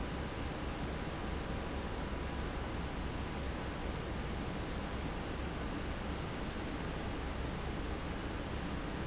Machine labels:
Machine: fan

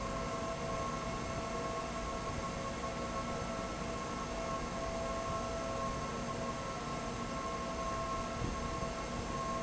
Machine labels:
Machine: fan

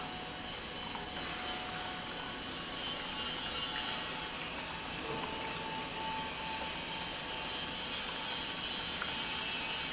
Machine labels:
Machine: pump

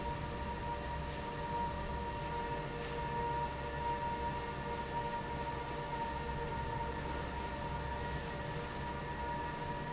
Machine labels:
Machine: fan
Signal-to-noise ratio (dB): -6 dB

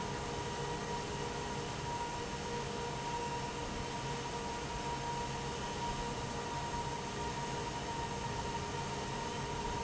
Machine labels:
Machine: fan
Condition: normal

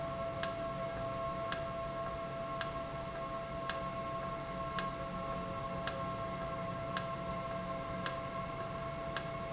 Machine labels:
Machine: valve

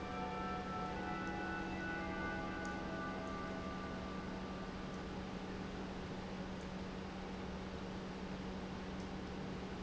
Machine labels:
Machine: pump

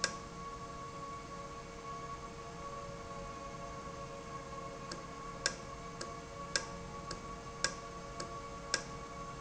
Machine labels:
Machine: valve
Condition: normal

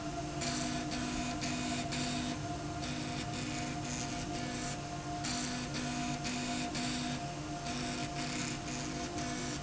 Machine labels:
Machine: slide rail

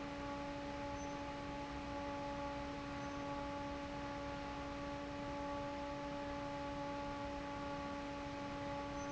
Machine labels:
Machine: fan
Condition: normal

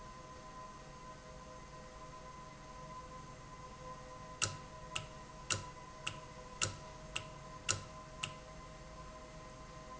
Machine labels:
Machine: valve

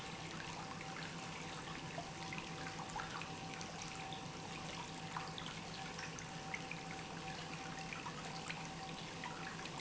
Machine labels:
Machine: pump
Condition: normal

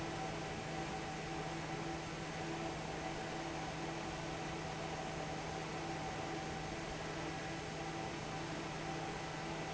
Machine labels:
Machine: fan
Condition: normal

